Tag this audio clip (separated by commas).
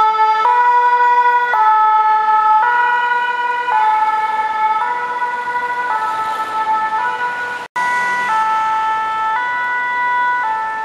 Emergency vehicle, Ambulance (siren), ambulance siren, Siren